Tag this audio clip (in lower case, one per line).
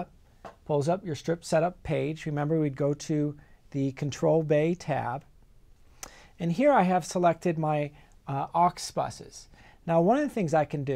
speech